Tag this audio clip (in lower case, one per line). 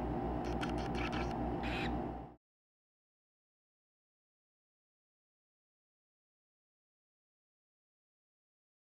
bird
animal